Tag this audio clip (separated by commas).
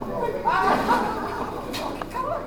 Laughter, Human voice